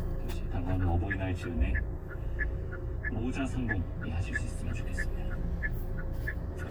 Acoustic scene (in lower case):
car